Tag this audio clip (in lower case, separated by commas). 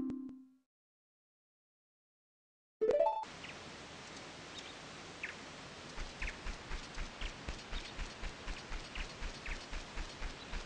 music, silence, outside, rural or natural